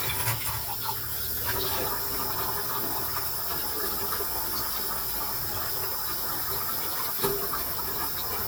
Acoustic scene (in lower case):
kitchen